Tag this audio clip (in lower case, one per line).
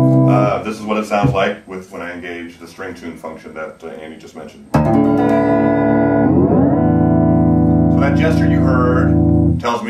speech
plucked string instrument
inside a small room
musical instrument
music
electronic tuner
guitar